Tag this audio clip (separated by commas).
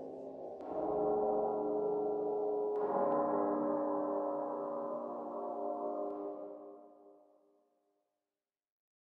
Music, Silence